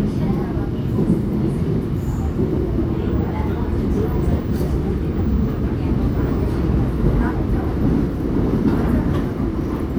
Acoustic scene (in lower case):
subway train